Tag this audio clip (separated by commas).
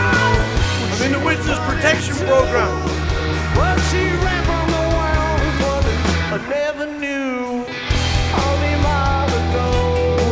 Music, Speech